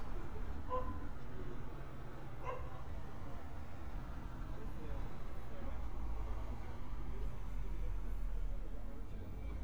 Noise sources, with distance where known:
dog barking or whining, far

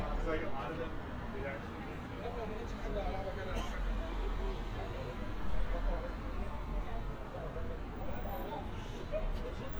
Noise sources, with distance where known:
person or small group talking, near

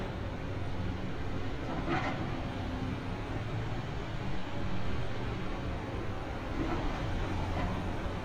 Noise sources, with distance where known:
non-machinery impact

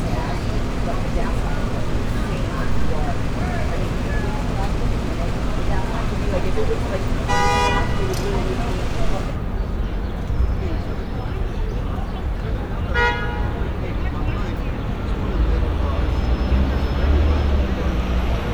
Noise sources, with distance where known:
engine of unclear size, near; car horn, near; person or small group talking

